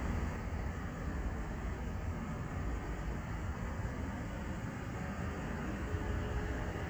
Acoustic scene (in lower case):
street